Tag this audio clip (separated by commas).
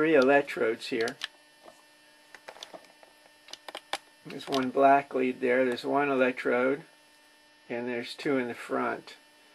Speech